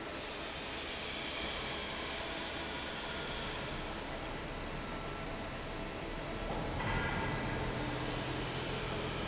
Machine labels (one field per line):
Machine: fan